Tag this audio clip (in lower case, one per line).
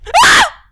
screaming
human voice
shout
yell